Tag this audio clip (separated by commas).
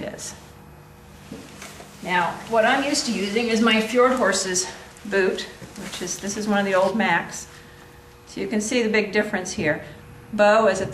Speech